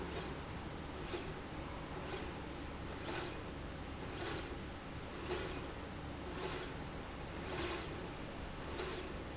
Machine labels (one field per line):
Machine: slide rail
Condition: normal